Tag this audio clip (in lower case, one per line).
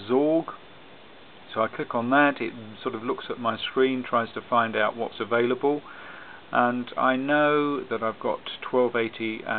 speech